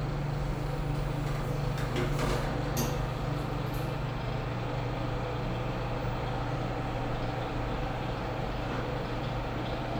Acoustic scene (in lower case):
elevator